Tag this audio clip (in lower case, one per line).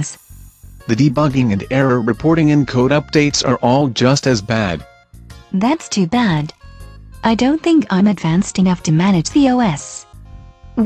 speech
inside a small room
music